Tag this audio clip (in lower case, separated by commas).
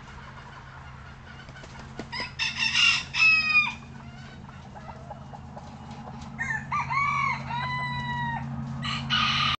cock-a-doodle-doo, chicken crowing, animal, rooster